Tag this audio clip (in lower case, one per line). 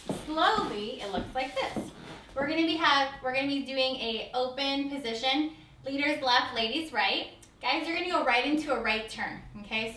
speech